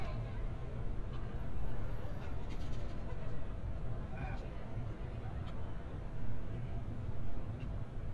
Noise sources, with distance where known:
person or small group talking, far

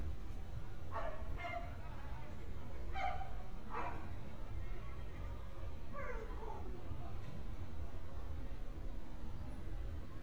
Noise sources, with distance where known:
dog barking or whining, far

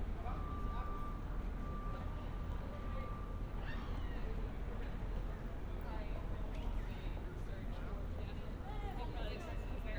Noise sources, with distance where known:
reverse beeper; person or small group talking

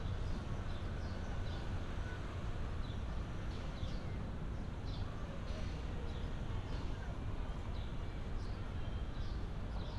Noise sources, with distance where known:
background noise

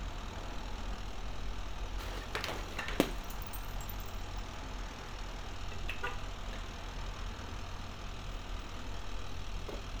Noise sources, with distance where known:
small-sounding engine, far; unidentified alert signal, near

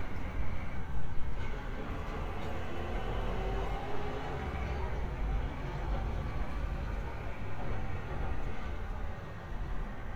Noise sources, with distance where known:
large-sounding engine, far

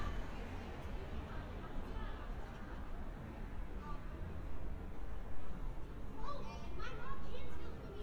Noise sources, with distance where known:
person or small group talking, near; person or small group shouting

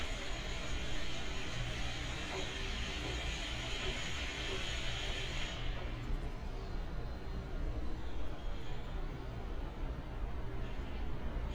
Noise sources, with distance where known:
unidentified impact machinery, far

